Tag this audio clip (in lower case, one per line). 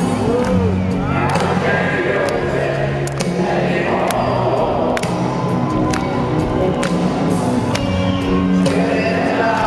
music